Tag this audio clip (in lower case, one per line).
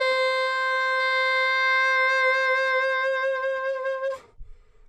music
musical instrument
woodwind instrument